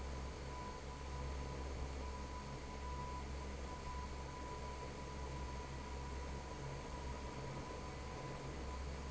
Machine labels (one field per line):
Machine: fan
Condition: normal